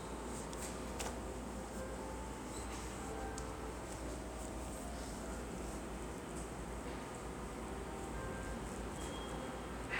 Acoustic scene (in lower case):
subway station